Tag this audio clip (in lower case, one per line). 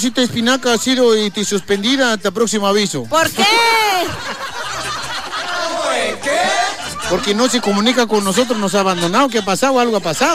speech
music